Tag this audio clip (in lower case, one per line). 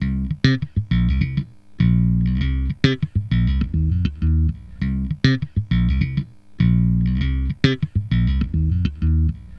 music
plucked string instrument
bass guitar
guitar
musical instrument